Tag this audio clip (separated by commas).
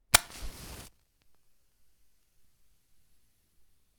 Fire